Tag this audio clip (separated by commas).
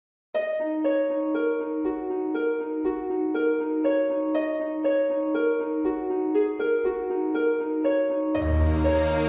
Music